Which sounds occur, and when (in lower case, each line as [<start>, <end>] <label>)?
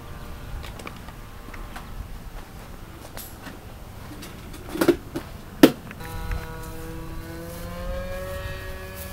[0.00, 0.30] tweet
[0.00, 9.12] background noise
[0.59, 1.09] footsteps
[1.45, 1.78] footsteps
[1.60, 1.89] tweet
[2.29, 2.69] footsteps
[3.06, 3.24] generic impact sounds
[3.33, 3.54] footsteps
[4.12, 4.29] generic impact sounds
[4.49, 4.57] generic impact sounds
[4.71, 4.97] generic impact sounds
[5.06, 5.23] generic impact sounds
[5.09, 5.27] footsteps
[5.58, 5.79] thump
[5.86, 6.05] tick
[6.01, 9.12] mechanisms
[6.26, 6.45] tick
[6.56, 6.91] footsteps
[7.28, 8.50] footsteps
[8.91, 9.12] footsteps